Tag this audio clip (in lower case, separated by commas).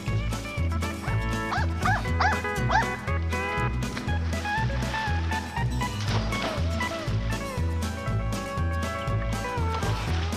bow-wow, music